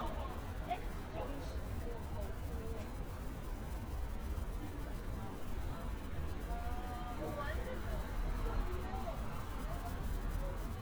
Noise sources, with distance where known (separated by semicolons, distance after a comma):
person or small group talking, far